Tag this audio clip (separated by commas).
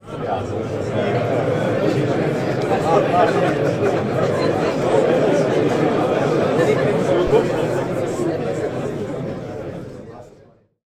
Crowd, Human group actions